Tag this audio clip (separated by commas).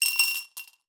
home sounds, Glass, Coin (dropping)